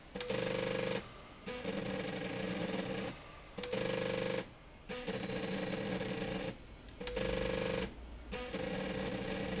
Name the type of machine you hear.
slide rail